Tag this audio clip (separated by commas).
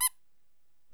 Squeak